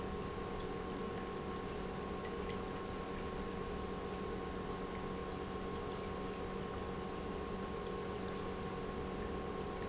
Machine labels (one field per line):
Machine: pump